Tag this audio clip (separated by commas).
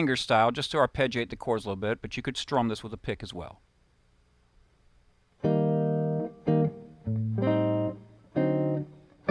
Speech, inside a small room, Musical instrument, Guitar, Music, Plucked string instrument